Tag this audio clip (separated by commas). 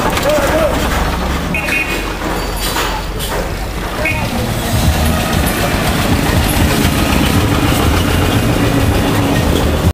Vehicle, Truck